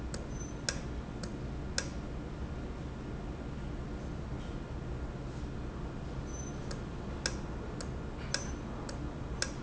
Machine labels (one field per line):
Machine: valve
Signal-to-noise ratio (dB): -6 dB